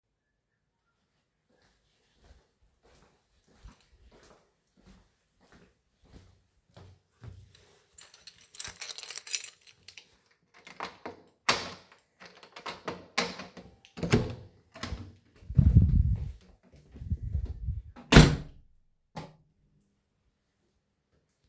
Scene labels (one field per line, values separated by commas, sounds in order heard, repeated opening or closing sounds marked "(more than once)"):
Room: hallway, living room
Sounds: footsteps, keys, door (more than once), light switch